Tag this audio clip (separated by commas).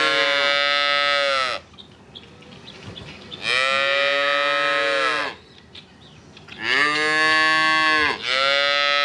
cow lowing